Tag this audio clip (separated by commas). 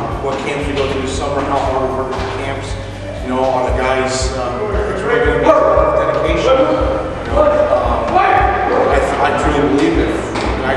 Speech